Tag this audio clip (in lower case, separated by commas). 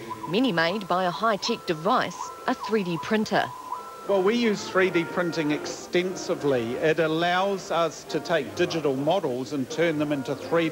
speech